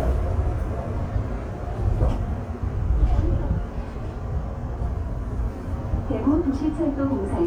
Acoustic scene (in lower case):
subway train